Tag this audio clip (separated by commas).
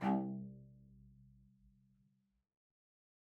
Music, Musical instrument, Bowed string instrument